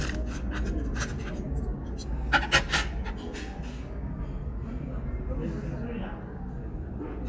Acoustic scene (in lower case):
restaurant